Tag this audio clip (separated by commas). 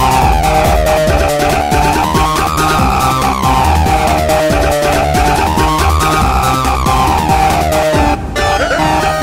Techno, Music